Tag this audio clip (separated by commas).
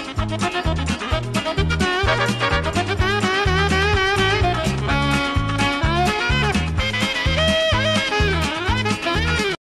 Music, Funny music